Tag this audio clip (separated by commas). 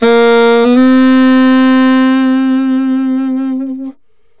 Musical instrument, woodwind instrument, Music